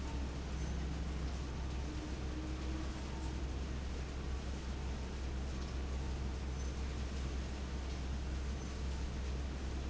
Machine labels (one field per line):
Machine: fan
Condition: abnormal